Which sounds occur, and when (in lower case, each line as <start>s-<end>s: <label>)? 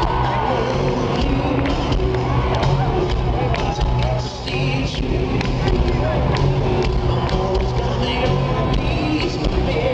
0.0s-9.9s: applause
0.0s-9.9s: crowd
0.0s-9.9s: music
0.0s-9.9s: shout
0.3s-1.9s: male singing
3.3s-3.7s: male singing
4.2s-5.0s: male singing
6.9s-9.9s: male singing